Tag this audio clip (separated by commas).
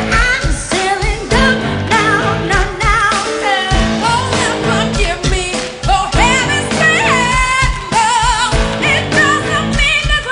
Music